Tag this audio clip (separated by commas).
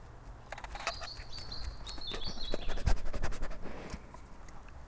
pets, Dog, Animal